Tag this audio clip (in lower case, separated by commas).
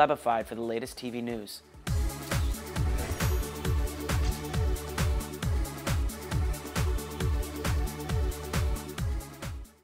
music, speech